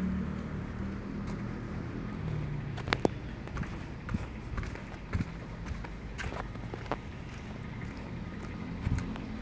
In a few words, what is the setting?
residential area